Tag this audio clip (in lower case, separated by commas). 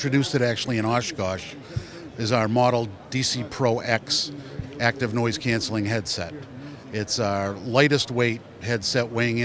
speech